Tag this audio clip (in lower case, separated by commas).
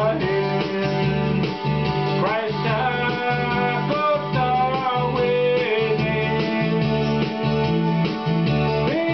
music, male singing